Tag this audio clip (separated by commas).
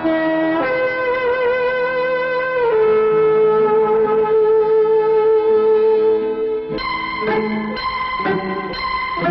Music